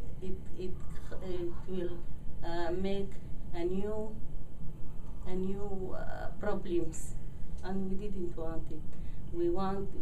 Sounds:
speech, inside a small room

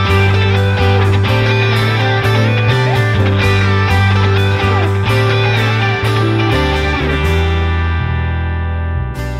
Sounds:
progressive rock

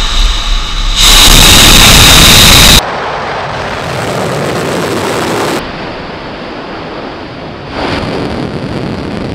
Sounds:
missile launch

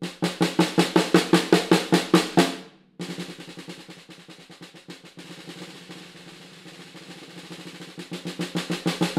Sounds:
music, bass drum, drum, musical instrument

